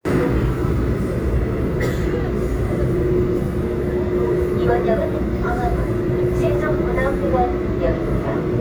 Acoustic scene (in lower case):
subway train